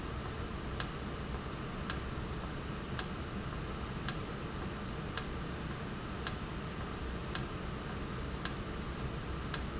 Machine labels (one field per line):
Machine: valve